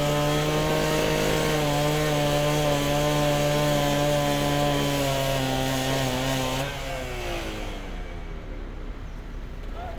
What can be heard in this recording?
chainsaw